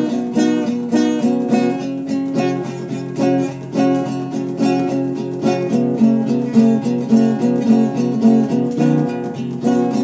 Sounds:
Strum, Acoustic guitar, Plucked string instrument, Musical instrument, Music, Guitar

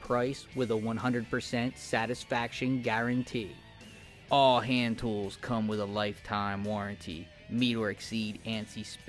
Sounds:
Music, Speech

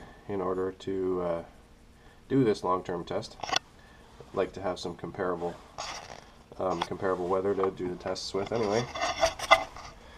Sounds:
Speech, inside a small room

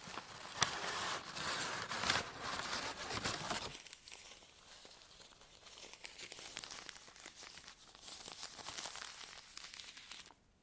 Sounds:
ripping paper

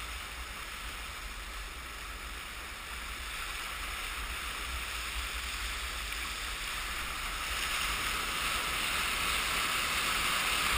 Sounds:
Waves

